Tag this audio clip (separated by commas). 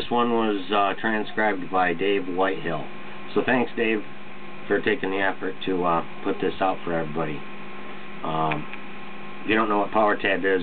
Speech